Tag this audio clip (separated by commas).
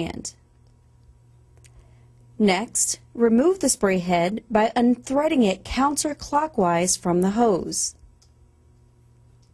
Speech